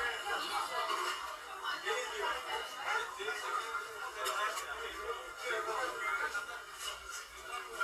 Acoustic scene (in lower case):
crowded indoor space